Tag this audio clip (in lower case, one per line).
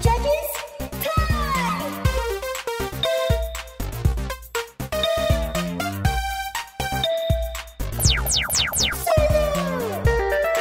music